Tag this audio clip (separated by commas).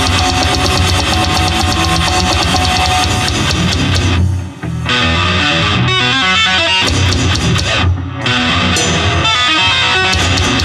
Acoustic guitar, Music, Musical instrument, Guitar